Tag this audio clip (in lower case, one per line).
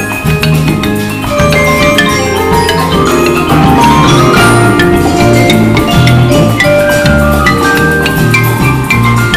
music
steelpan